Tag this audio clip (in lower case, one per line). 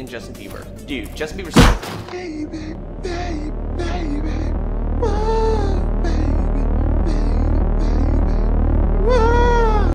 speech